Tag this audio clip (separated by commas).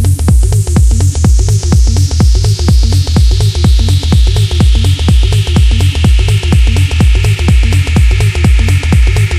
Music